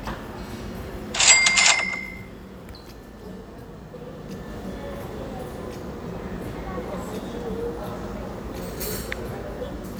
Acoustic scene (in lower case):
cafe